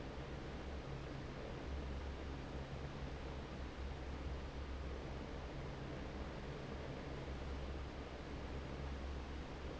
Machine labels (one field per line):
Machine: fan